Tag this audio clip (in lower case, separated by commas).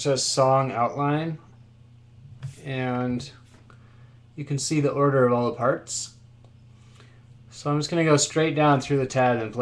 speech